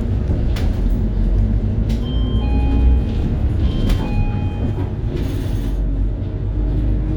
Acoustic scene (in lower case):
bus